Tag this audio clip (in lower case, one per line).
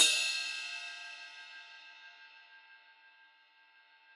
musical instrument
crash cymbal
percussion
cymbal
music